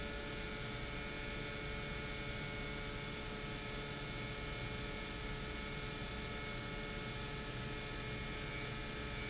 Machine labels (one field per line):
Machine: pump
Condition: normal